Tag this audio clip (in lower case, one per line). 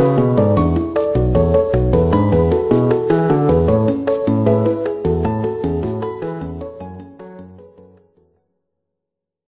music